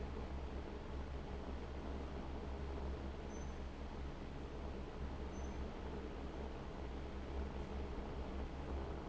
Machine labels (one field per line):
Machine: fan